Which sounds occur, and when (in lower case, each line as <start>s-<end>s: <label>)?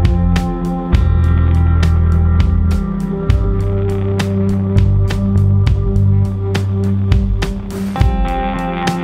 0.0s-9.0s: music